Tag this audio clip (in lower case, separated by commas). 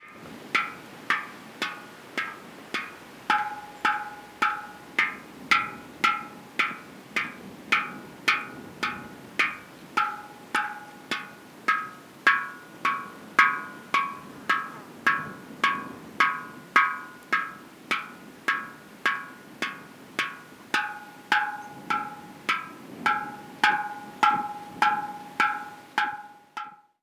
liquid, drip